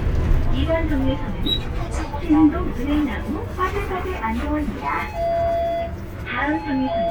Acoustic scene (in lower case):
bus